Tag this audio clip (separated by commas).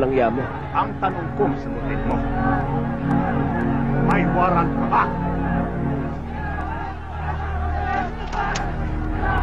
Speech, Music